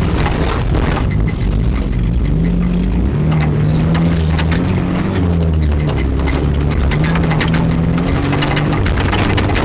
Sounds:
vehicle
car

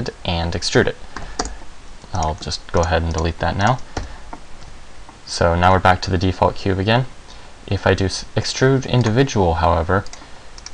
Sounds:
speech

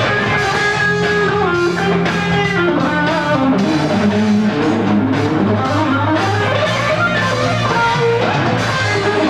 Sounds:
strum
guitar
music
plucked string instrument
musical instrument
electric guitar

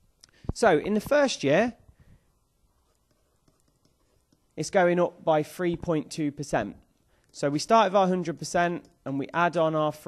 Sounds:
speech

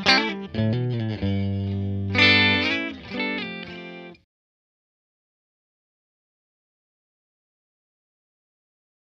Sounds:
electric guitar
plucked string instrument
music
guitar
strum
musical instrument

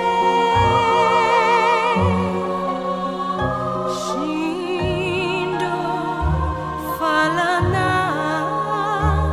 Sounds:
female singing
music

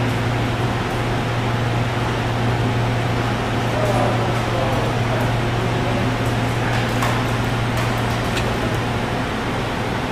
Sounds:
speech

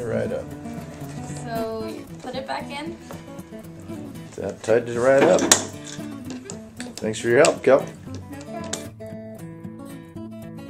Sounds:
speech
music

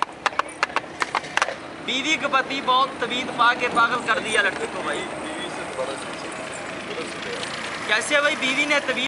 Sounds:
speech

